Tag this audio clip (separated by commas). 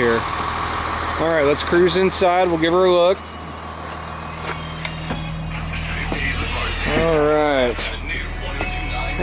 Music, Speech, Vehicle